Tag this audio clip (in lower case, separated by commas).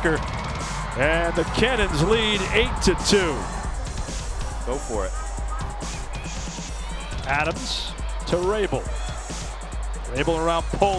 music, speech